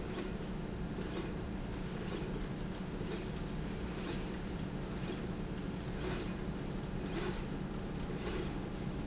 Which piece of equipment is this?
slide rail